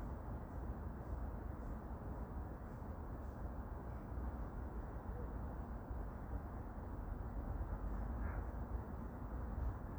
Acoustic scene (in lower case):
park